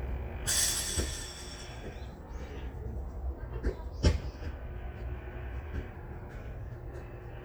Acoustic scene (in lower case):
park